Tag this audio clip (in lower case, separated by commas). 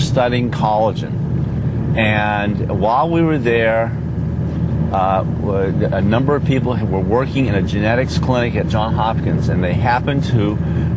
speech